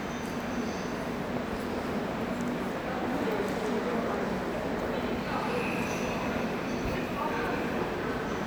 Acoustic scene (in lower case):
subway station